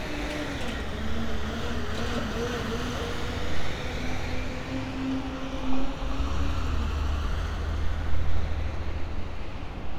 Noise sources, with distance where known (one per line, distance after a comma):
large-sounding engine